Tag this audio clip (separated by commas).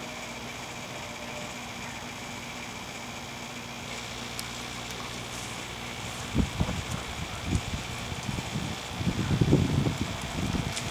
Microwave oven